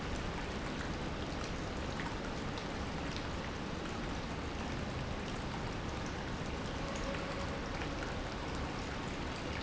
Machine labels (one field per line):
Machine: pump